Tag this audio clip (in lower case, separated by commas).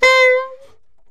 woodwind instrument, music, musical instrument